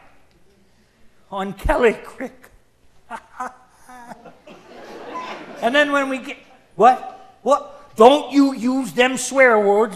Male speaking and laughter in the background